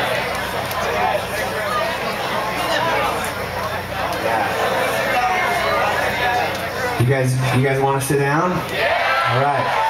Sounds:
speech

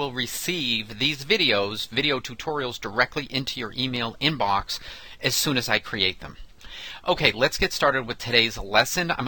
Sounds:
speech

